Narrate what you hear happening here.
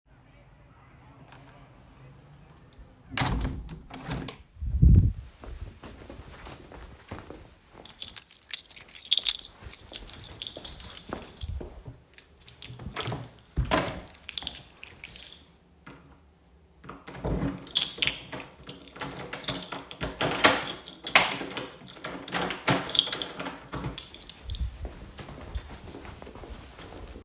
I closed the window, then got the keys, walked outside the room, locked the door and went away